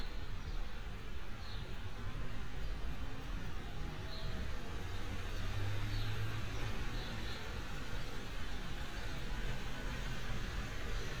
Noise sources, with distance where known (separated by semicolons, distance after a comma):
medium-sounding engine